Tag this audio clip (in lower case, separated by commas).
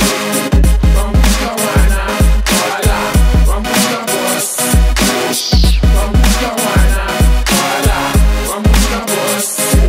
music